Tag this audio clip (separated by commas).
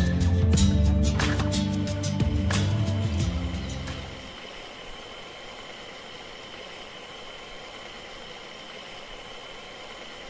Bus, Vehicle, Music